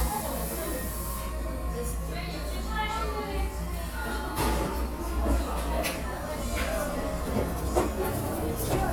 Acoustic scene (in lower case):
cafe